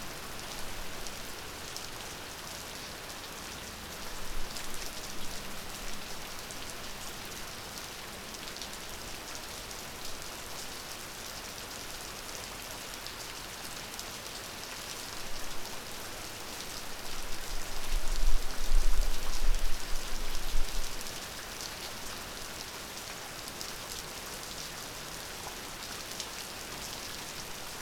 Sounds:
water, rain

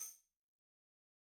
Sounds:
musical instrument, percussion, music, tambourine

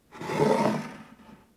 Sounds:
wood

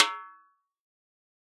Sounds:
musical instrument, music, snare drum, drum, percussion

